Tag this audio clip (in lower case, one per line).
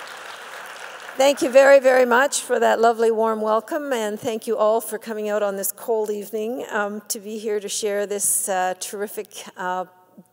speech